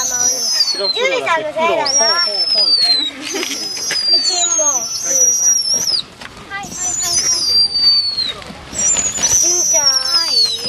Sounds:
animal, speech, bird

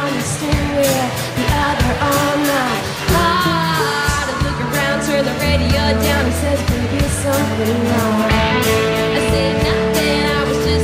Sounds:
music

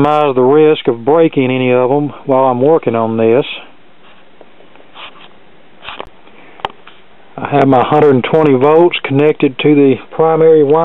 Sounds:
speech

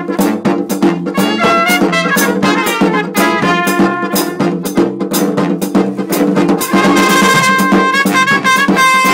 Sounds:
inside a large room or hall, guitar, music, musical instrument

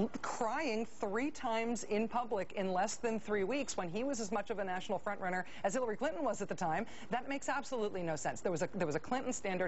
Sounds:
speech

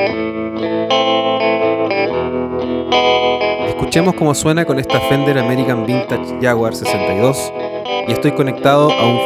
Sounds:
music, speech, distortion

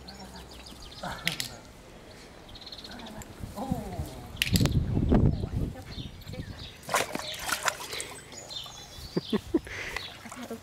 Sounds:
speech

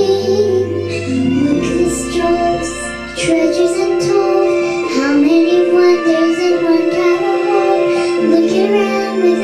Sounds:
music, child singing

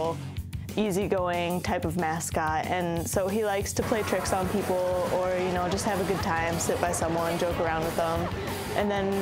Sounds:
music, speech

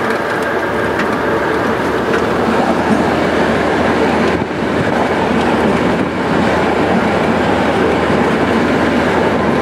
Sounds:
rail transport, vehicle, train

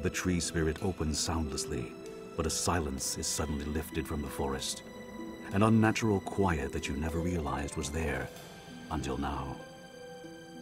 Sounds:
music, speech

